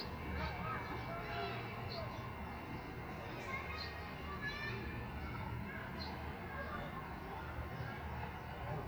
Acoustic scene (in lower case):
residential area